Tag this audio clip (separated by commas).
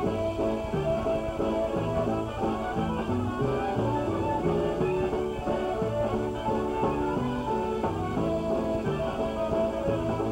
Music